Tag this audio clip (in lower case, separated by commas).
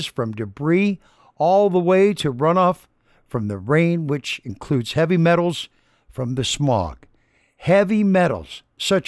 speech